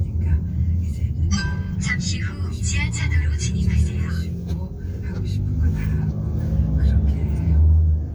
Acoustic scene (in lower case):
car